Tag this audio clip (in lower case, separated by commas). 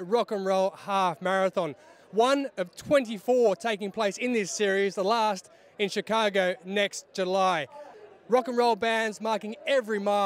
speech, outside, urban or man-made